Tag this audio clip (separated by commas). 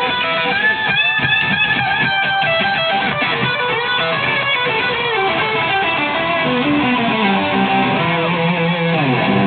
Musical instrument, Guitar, Acoustic guitar, Strum, Plucked string instrument, Music